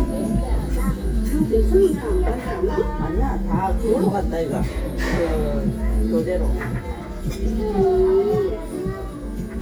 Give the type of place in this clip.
restaurant